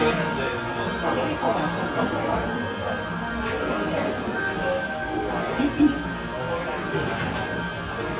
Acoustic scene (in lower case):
cafe